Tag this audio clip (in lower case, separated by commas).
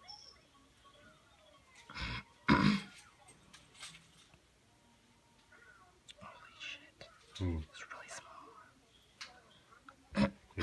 speech, inside a small room